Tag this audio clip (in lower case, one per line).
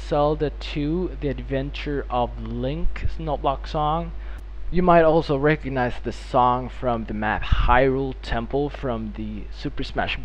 speech